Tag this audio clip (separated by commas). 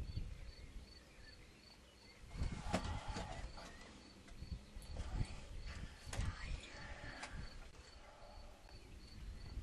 Animal, Speech, Environmental noise